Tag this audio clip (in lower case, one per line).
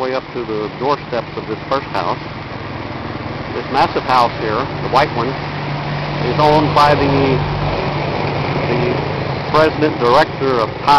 speech